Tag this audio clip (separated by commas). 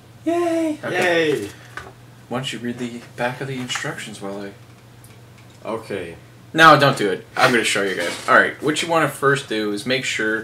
Speech